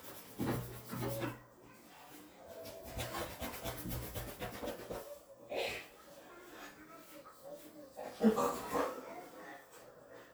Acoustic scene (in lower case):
restroom